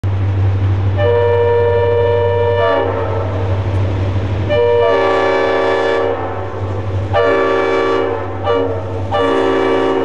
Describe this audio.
Humming of a large engine, train whistles blow and approach